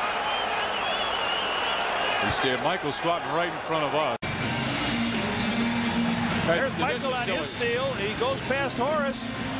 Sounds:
speech, music

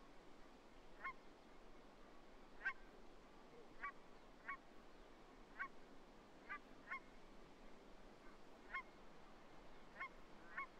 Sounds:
honk

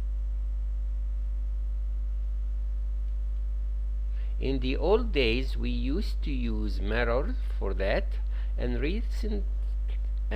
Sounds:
speech

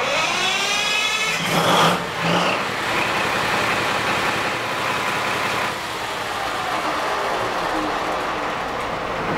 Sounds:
speech, inside a small room

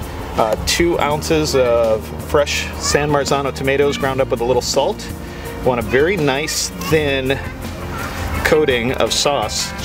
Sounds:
speech, music

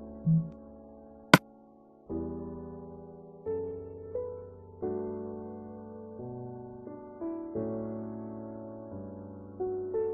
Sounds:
music

